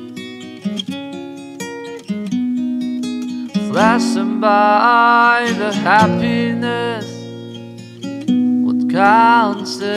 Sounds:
music
acoustic guitar

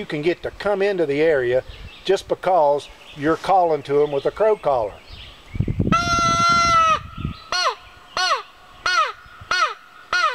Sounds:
outside, rural or natural
speech

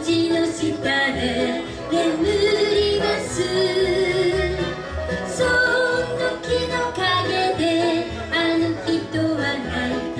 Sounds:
musical instrument
music
bluegrass
guitar

